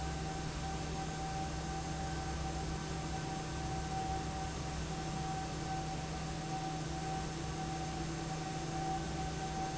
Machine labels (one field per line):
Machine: fan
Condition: normal